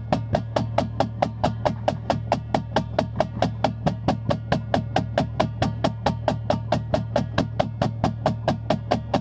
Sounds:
music

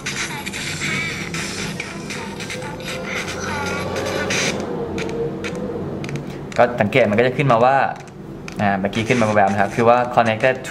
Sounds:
speech
music

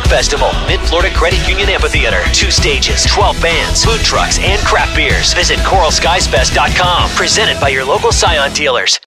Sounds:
speech
music

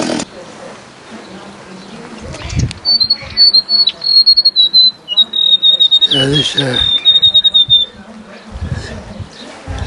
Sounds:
squawk
chainsaw
speech

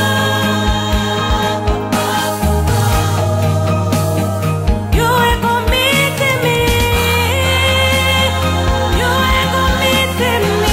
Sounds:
christian music
music
gospel music
singing

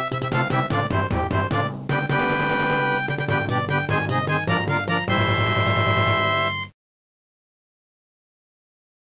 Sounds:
soundtrack music
music
funny music

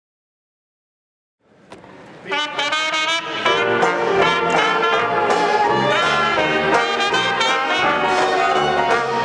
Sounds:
inside a large room or hall
music
jazz
orchestra

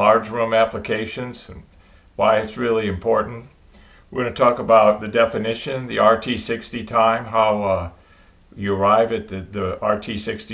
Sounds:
speech

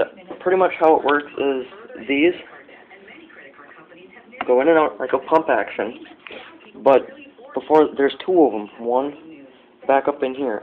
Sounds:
speech

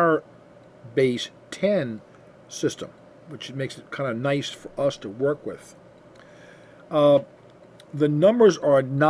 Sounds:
speech

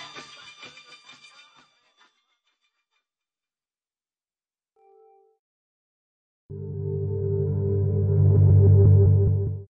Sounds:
music
musical instrument

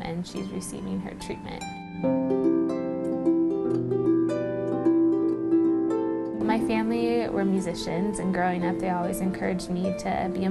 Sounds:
music
harp
speech

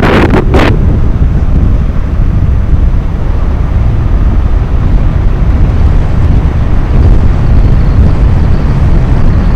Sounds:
car
vehicle
outside, urban or man-made

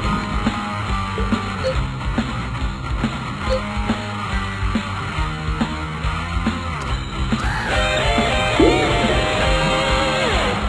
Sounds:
music

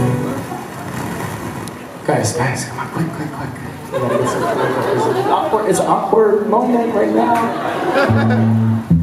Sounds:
guitar
electric guitar
plucked string instrument
music
strum
speech
acoustic guitar
musical instrument

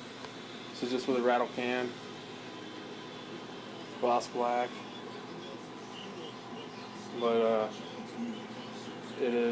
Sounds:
speech

